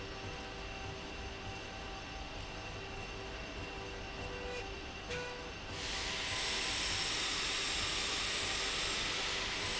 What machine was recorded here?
slide rail